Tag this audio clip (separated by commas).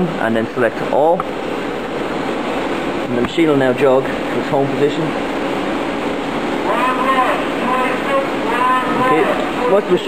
Speech